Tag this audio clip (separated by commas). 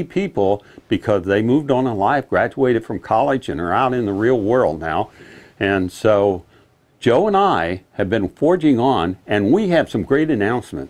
Speech